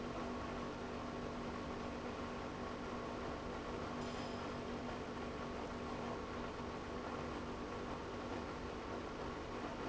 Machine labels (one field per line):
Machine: pump